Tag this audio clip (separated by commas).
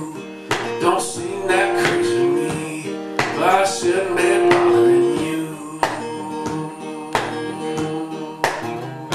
Singing, Music